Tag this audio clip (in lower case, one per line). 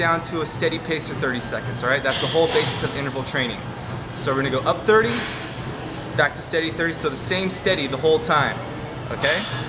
speech
inside a large room or hall